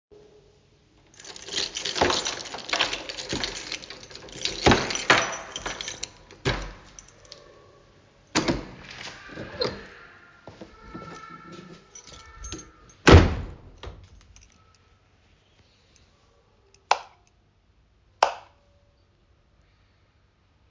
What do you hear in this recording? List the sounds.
keys, door, light switch